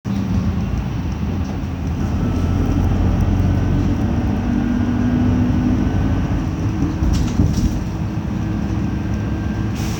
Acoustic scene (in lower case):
bus